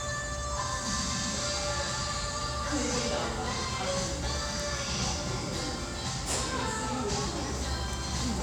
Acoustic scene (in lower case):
restaurant